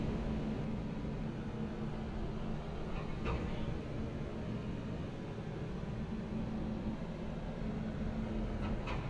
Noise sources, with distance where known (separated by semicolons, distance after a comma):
unidentified human voice